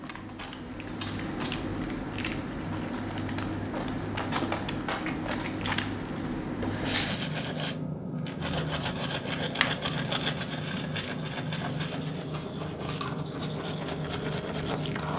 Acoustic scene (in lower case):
restroom